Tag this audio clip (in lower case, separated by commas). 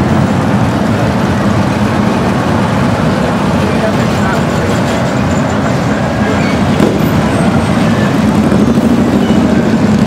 vehicle, truck, speech